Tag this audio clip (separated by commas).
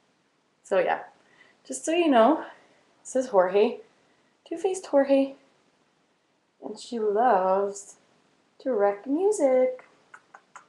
Speech